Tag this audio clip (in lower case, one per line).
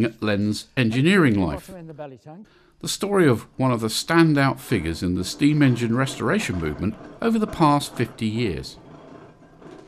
speech